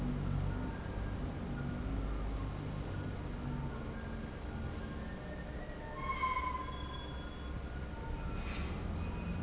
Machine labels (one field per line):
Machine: fan